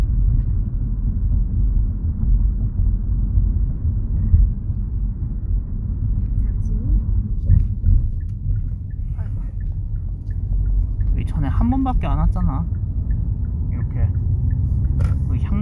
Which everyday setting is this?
car